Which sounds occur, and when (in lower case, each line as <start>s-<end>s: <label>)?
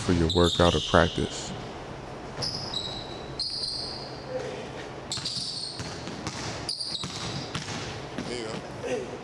0.0s-1.5s: man speaking
0.0s-9.2s: mechanisms
0.3s-1.6s: squeal
2.4s-2.6s: footsteps
2.4s-4.1s: squeal
4.3s-9.2s: conversation
4.3s-4.6s: man speaking
5.1s-6.0s: squeal
5.1s-5.3s: basketball bounce
5.7s-6.7s: basketball bounce
6.7s-7.5s: squeal
6.9s-8.0s: basketball bounce
8.1s-8.6s: footsteps
8.2s-8.6s: man speaking
8.8s-9.1s: man speaking